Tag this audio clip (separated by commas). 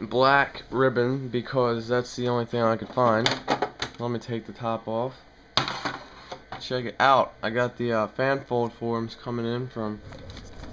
Speech